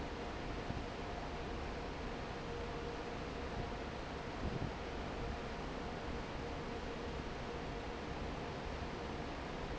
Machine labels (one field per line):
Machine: fan